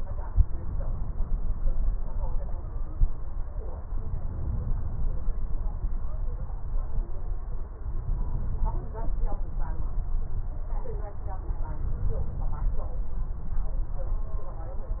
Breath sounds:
3.88-5.38 s: inhalation
7.83-9.33 s: inhalation
11.54-13.11 s: inhalation

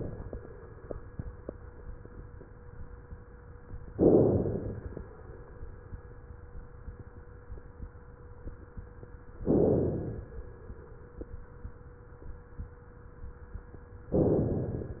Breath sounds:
3.91-4.97 s: inhalation
9.45-10.44 s: inhalation
14.15-15.00 s: inhalation

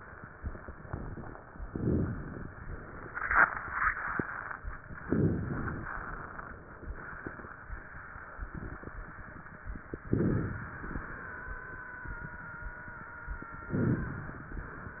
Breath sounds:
1.63-2.48 s: inhalation
5.05-5.89 s: inhalation
10.09-10.94 s: inhalation
13.71-14.55 s: inhalation

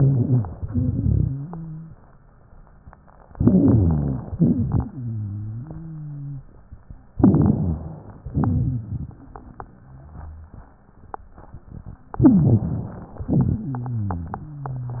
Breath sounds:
0.00-0.61 s: inhalation
0.00-0.61 s: wheeze
0.63-1.31 s: exhalation
0.63-1.99 s: wheeze
3.34-4.29 s: inhalation
3.34-4.29 s: wheeze
4.38-4.95 s: exhalation
4.38-6.51 s: wheeze
7.17-8.20 s: rhonchi
7.17-8.29 s: inhalation
8.31-9.39 s: exhalation
8.31-9.39 s: rhonchi
12.18-12.97 s: rhonchi
12.22-13.30 s: inhalation
13.28-13.78 s: exhalation
13.28-15.00 s: rhonchi

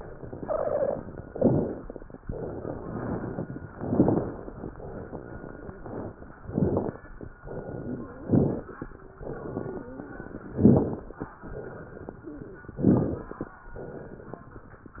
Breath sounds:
1.29-2.20 s: inhalation
1.29-2.20 s: crackles
2.18-3.63 s: exhalation
3.72-4.63 s: inhalation
3.72-4.63 s: crackles
4.69-6.22 s: exhalation
6.41-7.33 s: inhalation
6.41-7.33 s: crackles
7.48-8.18 s: exhalation
7.48-8.18 s: crackles
8.25-8.94 s: inhalation
8.25-8.94 s: crackles
9.13-10.46 s: crackles
9.13-10.51 s: exhalation
10.51-11.27 s: inhalation
10.51-11.27 s: crackles
11.44-12.77 s: exhalation
11.44-12.77 s: crackles
12.81-13.57 s: inhalation
12.81-13.57 s: crackles
13.74-15.00 s: exhalation
13.74-15.00 s: crackles

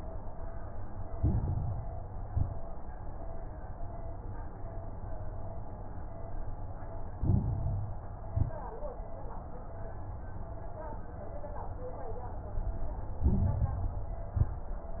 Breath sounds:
1.06-2.16 s: inhalation
1.06-2.16 s: crackles
2.18-2.68 s: exhalation
2.18-2.68 s: crackles
7.14-8.24 s: inhalation
7.14-8.24 s: crackles
8.28-8.78 s: exhalation
8.28-8.78 s: crackles
13.21-14.31 s: inhalation
13.21-14.31 s: crackles
14.35-14.84 s: exhalation
14.35-14.84 s: crackles

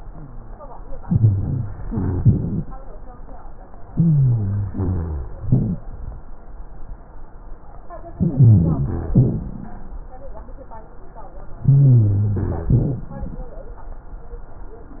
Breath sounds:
1.04-1.69 s: inhalation
1.04-1.69 s: wheeze
1.86-2.68 s: exhalation
1.86-2.68 s: rhonchi
3.91-4.67 s: inhalation
3.91-5.31 s: rhonchi
4.71-5.33 s: exhalation
5.46-5.86 s: inhalation
5.46-5.86 s: rhonchi
8.18-9.13 s: inhalation
8.18-9.13 s: rhonchi
9.16-10.02 s: exhalation
9.16-10.02 s: rhonchi
11.65-12.68 s: inhalation
11.65-12.68 s: rhonchi
12.69-13.55 s: exhalation
12.69-13.55 s: rhonchi

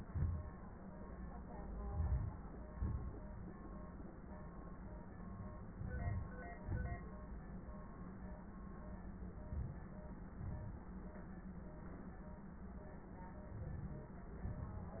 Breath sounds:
1.96-2.45 s: inhalation
2.73-3.23 s: exhalation
5.73-6.30 s: inhalation
6.62-7.02 s: exhalation
9.47-9.96 s: inhalation
10.34-10.84 s: exhalation
13.64-14.14 s: inhalation
14.52-15.00 s: exhalation

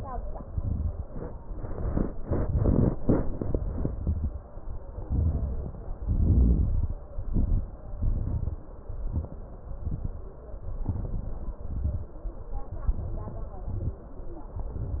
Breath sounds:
0.45-0.98 s: inhalation
0.45-0.98 s: crackles
4.98-5.98 s: inhalation
4.98-5.98 s: crackles
5.99-6.99 s: exhalation
5.99-6.99 s: crackles
7.13-7.77 s: inhalation
7.13-7.77 s: crackles
7.97-8.61 s: exhalation
7.97-8.61 s: crackles
8.86-9.42 s: crackles
8.88-9.44 s: inhalation
9.77-10.34 s: exhalation
9.77-10.34 s: crackles
10.89-11.60 s: inhalation
10.89-11.60 s: crackles
11.62-12.14 s: exhalation
11.62-12.14 s: crackles
12.88-13.67 s: inhalation
12.88-13.67 s: crackles
13.70-14.14 s: exhalation
13.70-14.14 s: crackles
14.54-15.00 s: inhalation
14.54-15.00 s: crackles

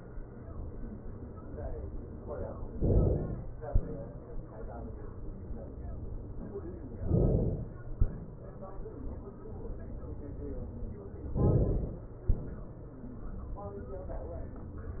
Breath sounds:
2.77-3.62 s: inhalation
3.62-4.74 s: exhalation
7.03-7.91 s: inhalation
7.91-9.21 s: exhalation
11.34-12.20 s: inhalation
12.20-13.22 s: exhalation

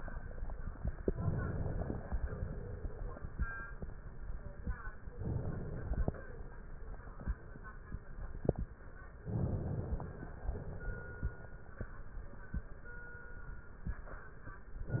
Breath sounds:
1.00-2.13 s: inhalation
2.13-3.19 s: exhalation
5.10-6.17 s: inhalation
9.27-10.33 s: inhalation
10.33-11.56 s: exhalation
14.88-15.00 s: inhalation

